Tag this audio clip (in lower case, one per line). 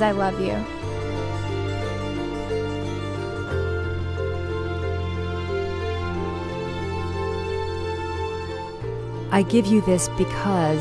music
speech